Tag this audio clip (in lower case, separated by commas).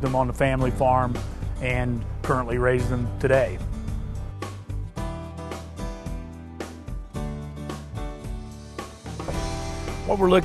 speech, music